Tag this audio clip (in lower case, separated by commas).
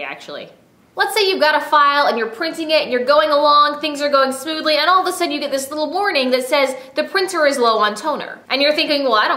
speech